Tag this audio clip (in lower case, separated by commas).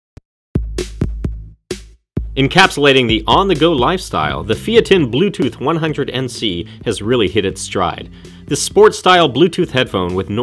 inside a small room, music, drum machine, speech